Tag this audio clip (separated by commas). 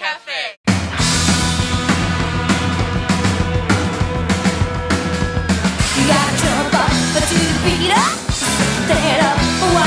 Music, Speech